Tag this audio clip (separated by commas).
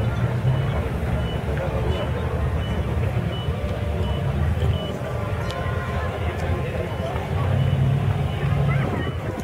Car passing by, Speech, Motor vehicle (road), Vehicle, Car